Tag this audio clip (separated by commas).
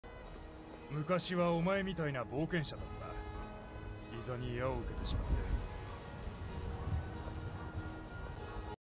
Music, Speech